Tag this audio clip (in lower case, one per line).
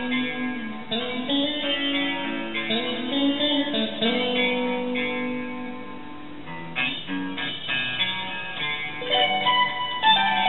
music
musical instrument
plucked string instrument